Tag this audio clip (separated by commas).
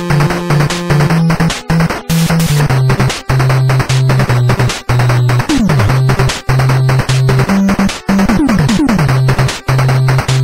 Music